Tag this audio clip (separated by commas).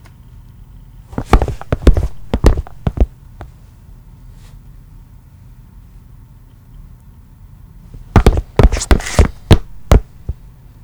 Walk